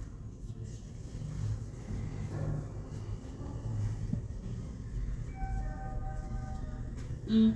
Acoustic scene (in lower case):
elevator